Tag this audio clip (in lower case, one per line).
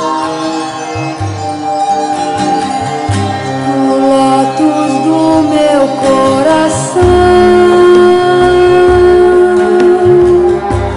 music
mantra